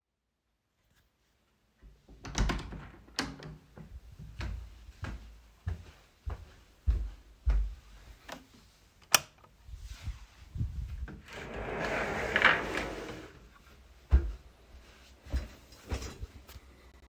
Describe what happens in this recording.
I walked through the hallway and opened the door. After entering the room I turned on the light switch.